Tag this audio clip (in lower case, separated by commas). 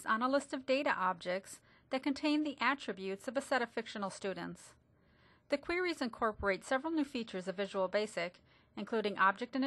speech